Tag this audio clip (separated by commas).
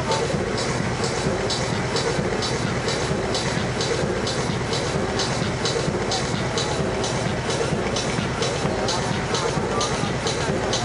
Music, speech noise, Speech